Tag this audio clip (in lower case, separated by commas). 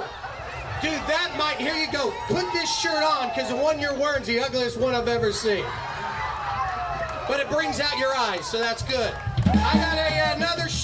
speech, music